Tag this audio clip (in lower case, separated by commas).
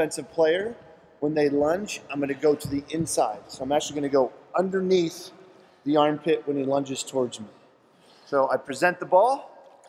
speech